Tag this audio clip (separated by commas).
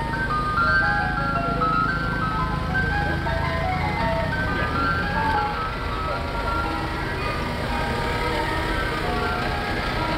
ice cream van